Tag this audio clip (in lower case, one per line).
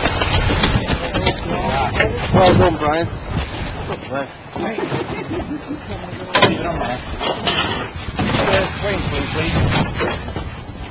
speech